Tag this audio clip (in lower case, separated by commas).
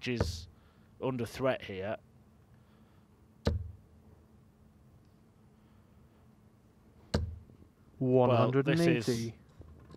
playing darts